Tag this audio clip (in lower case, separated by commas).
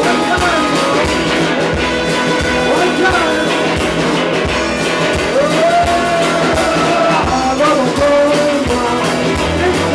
rock and roll, music